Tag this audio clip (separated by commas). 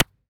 Clapping, Hands